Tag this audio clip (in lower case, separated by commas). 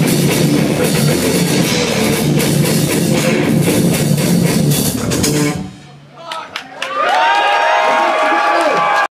speech, drum, music, drum kit, rock music, heavy metal, guitar, musical instrument